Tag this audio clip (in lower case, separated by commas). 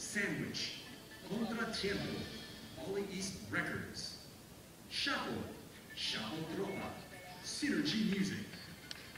speech, music